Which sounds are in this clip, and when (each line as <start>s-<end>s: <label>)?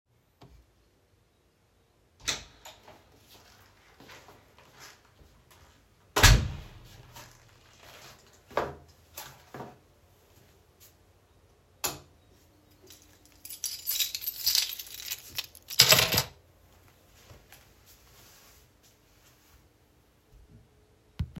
2.0s-3.5s: door
3.0s-5.6s: footsteps
5.4s-7.2s: door
6.9s-10.7s: footsteps
10.7s-12.8s: light switch
12.9s-16.8s: keys
16.8s-20.0s: footsteps